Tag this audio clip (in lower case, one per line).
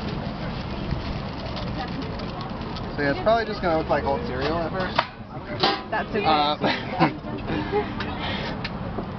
speech